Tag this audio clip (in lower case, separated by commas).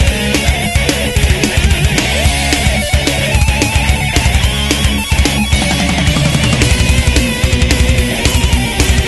plucked string instrument, music, guitar, musical instrument